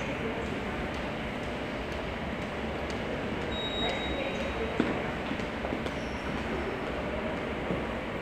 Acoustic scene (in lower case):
subway station